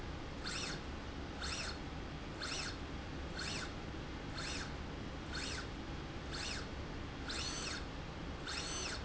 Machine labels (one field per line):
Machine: slide rail